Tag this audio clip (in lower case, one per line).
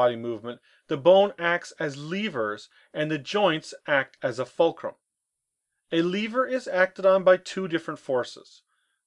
speech